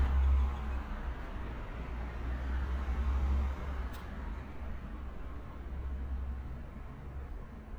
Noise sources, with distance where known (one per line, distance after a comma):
medium-sounding engine